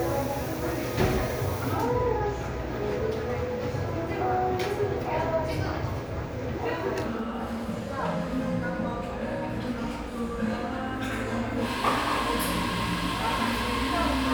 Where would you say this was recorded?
in a cafe